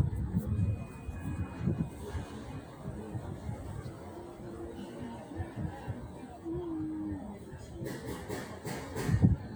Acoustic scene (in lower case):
residential area